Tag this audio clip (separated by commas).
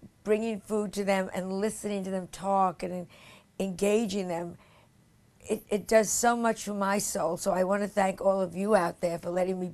woman speaking, Speech, monologue